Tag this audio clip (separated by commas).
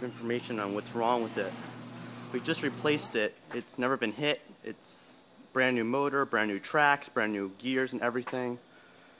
Door, Speech, Sliding door